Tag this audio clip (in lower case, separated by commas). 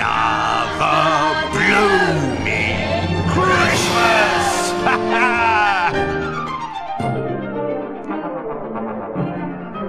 christmas music, christian music, music